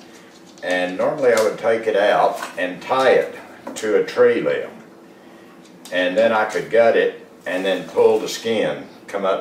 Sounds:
speech

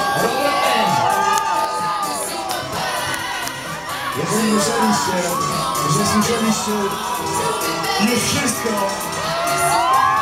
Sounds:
speech
music

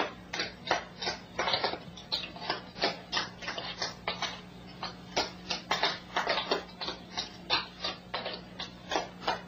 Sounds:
tap dancing

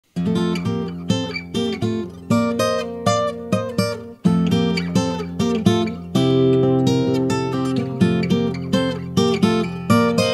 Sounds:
music

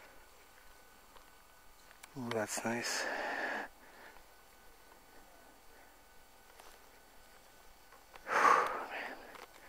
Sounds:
speech

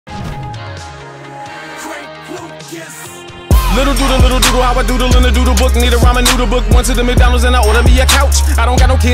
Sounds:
rapping

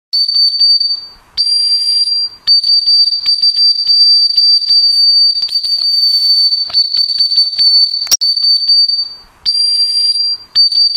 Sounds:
whistle

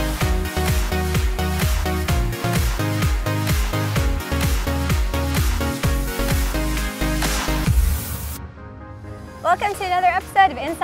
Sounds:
music
speech

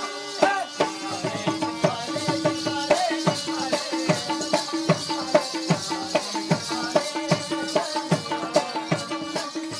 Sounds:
tabla
music

